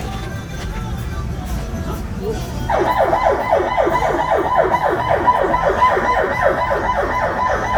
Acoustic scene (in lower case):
street